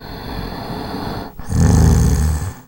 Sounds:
Respiratory sounds, Breathing

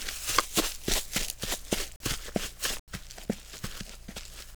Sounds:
Run

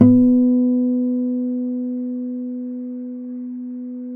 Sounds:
Guitar, Music, Plucked string instrument, Acoustic guitar, Musical instrument

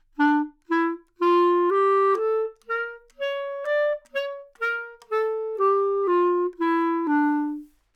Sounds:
woodwind instrument, Music, Musical instrument

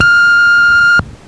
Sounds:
Telephone, Alarm

